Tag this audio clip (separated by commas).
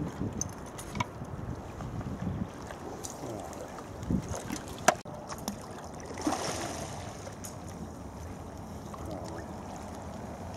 Speech